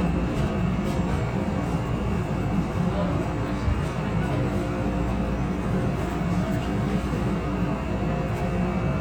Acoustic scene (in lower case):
subway train